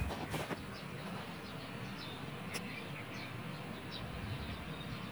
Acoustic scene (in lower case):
park